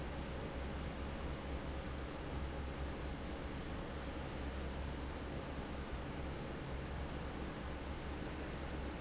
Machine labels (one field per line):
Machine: fan